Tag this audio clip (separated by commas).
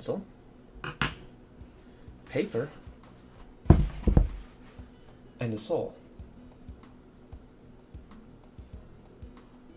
inside a small room, Speech